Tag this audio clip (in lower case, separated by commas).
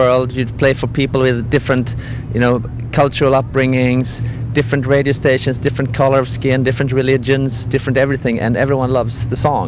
speech